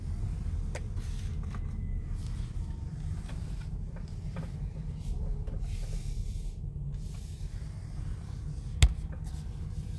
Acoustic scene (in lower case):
car